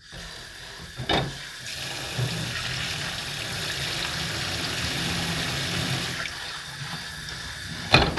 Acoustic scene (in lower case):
kitchen